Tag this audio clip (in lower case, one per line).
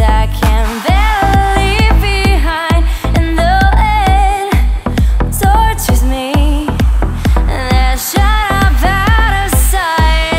music